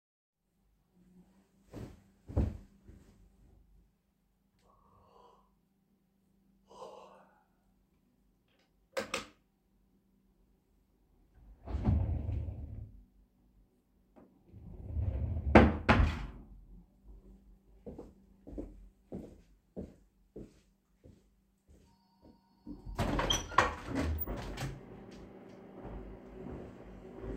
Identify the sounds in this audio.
light switch, wardrobe or drawer, footsteps, phone ringing, window